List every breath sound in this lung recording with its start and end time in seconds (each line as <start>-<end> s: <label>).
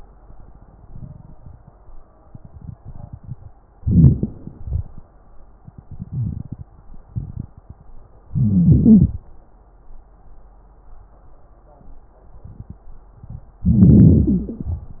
3.80-4.50 s: inhalation
4.47-4.88 s: exhalation
8.35-9.18 s: inhalation
13.63-14.25 s: inhalation
13.63-14.25 s: crackles
14.24-14.87 s: exhalation